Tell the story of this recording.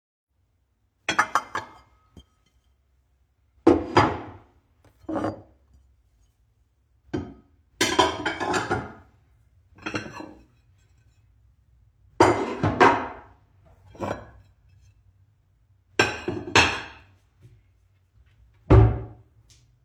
I picked up some plates and put them in the cabinet, afterwards I closed the cabinet